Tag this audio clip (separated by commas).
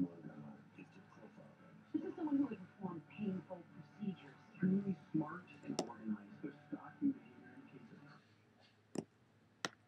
Speech